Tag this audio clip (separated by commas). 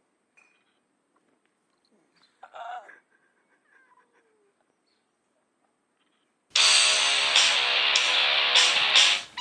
Music